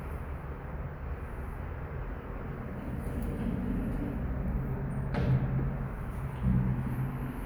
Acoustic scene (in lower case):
elevator